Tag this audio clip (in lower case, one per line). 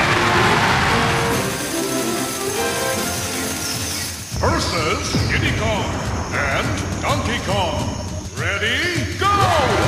music
speech